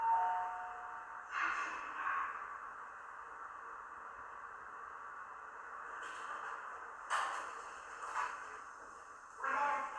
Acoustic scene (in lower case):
elevator